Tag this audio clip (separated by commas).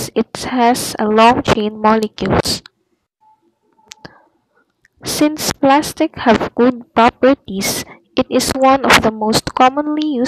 Speech